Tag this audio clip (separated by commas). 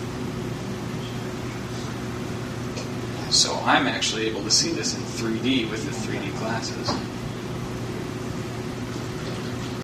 Speech